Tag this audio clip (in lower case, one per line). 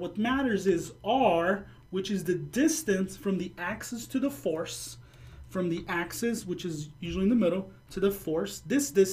speech